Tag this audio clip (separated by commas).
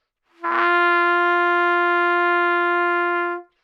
Music, Brass instrument, Musical instrument, Trumpet